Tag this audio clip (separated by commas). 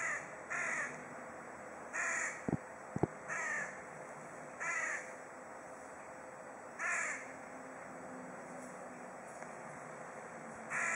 crow cawing